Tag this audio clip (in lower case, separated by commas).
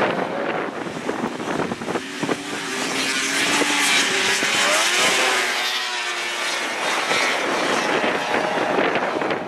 driving snowmobile